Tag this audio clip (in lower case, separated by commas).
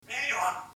speech, human voice